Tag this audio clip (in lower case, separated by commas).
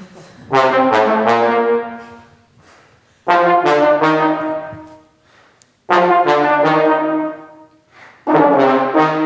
trombone, brass instrument, playing trombone